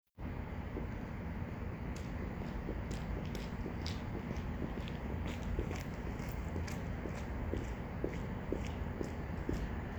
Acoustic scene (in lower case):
street